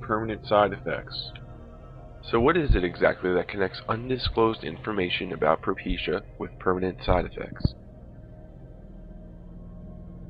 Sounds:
music, speech

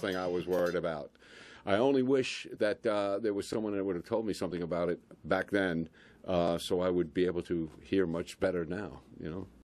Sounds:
speech

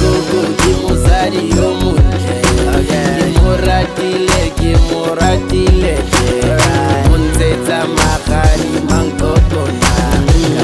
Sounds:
funk, music

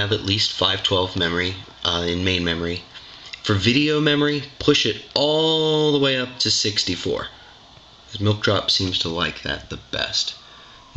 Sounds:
speech

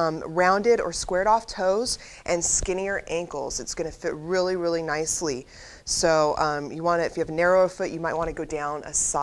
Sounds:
speech

